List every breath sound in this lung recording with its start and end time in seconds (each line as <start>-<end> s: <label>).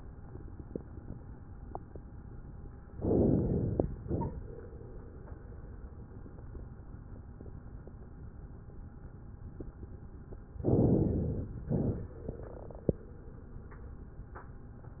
2.94-3.81 s: inhalation
4.00-4.88 s: exhalation
10.64-11.52 s: inhalation
11.65-12.52 s: exhalation